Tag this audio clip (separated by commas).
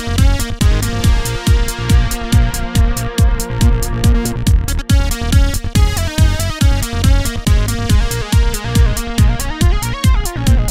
Music